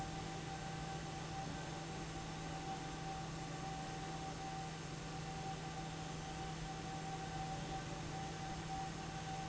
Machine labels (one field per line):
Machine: fan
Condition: abnormal